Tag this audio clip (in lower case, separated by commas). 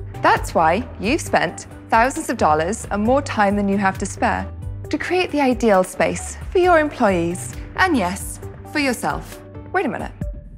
speech, music